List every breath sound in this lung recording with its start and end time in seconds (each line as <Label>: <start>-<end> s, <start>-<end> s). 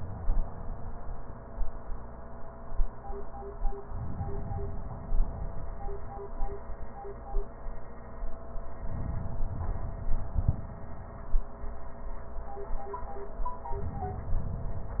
Inhalation: 3.89-5.61 s, 8.72-10.44 s